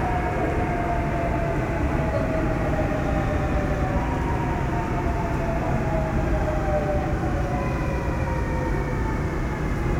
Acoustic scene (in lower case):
subway train